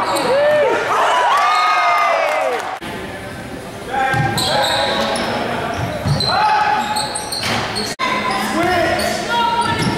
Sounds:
basketball bounce
inside a public space
speech

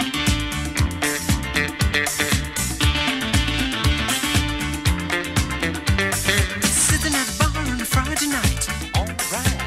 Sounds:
music

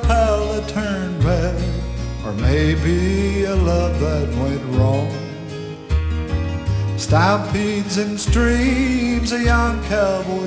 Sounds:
music

